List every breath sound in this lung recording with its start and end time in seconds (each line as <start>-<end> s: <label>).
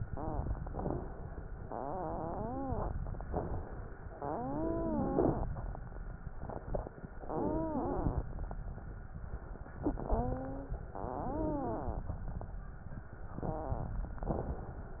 0.00-0.49 s: wheeze
0.54-1.29 s: inhalation
1.59-2.97 s: exhalation
1.59-2.97 s: wheeze
3.25-3.99 s: inhalation
4.06-5.44 s: exhalation
4.06-5.44 s: wheeze
7.27-8.29 s: exhalation
7.27-8.29 s: wheeze
10.06-10.80 s: wheeze
10.91-12.05 s: exhalation
10.91-12.05 s: wheeze